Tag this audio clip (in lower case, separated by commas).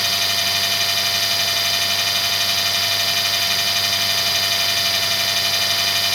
tools